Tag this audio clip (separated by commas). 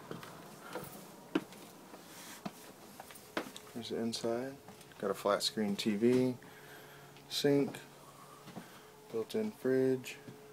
Speech